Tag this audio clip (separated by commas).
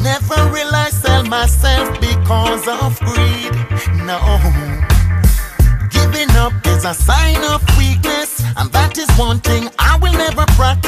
Music